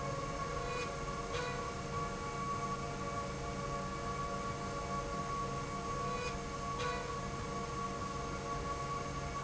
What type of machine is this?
slide rail